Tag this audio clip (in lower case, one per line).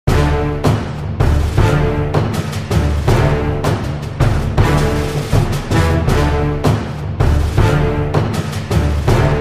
theme music